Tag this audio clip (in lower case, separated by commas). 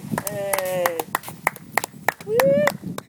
hands, applause, human group actions, cheering, clapping